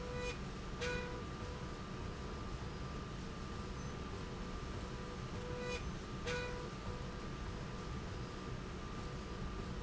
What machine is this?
slide rail